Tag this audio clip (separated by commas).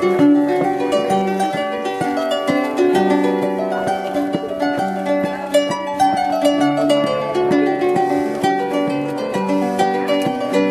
playing harp, Harp, Music, Speech